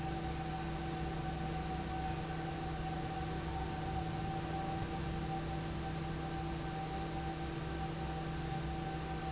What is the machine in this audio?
fan